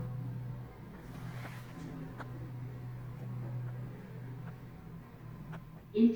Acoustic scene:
elevator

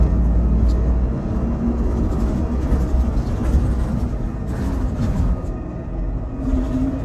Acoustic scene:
bus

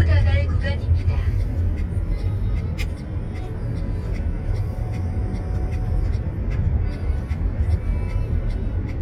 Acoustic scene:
car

